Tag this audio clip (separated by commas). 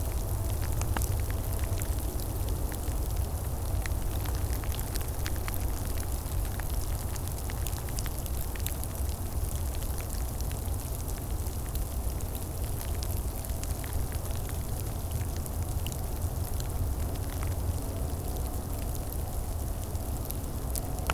Rain, Water